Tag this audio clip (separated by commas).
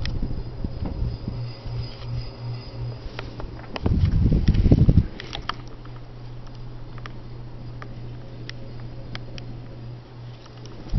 Mechanical fan